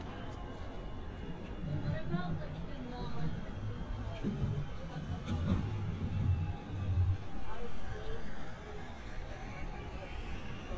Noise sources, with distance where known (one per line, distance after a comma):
person or small group talking, near